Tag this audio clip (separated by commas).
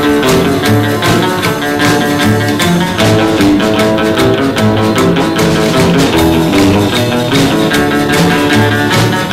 Psychedelic rock, Music